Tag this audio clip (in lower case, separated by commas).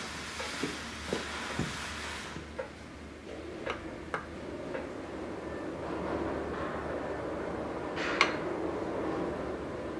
forging swords